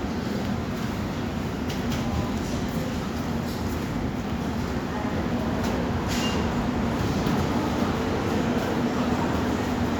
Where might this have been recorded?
in a subway station